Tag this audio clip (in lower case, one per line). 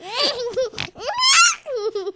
laughter
human voice